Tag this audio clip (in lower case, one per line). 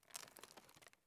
crushing
wood
crackle